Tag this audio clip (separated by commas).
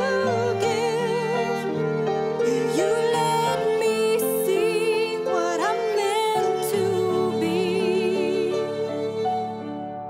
Pizzicato, Harp